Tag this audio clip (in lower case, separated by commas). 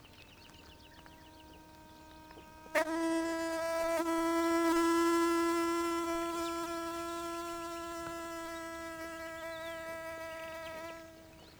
animal, wild animals, insect